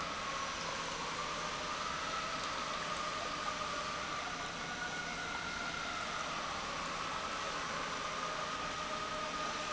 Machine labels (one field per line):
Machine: pump